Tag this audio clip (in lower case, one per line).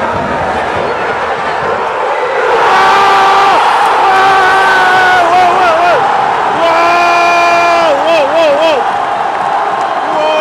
speech